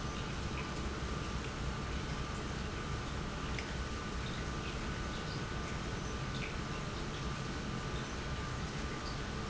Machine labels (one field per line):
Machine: pump